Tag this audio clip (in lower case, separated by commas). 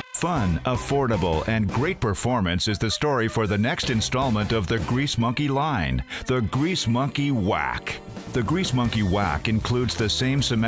music, speech